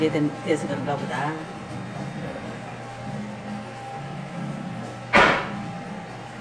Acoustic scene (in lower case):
cafe